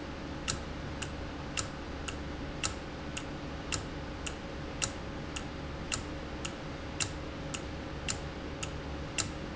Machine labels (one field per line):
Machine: valve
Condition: normal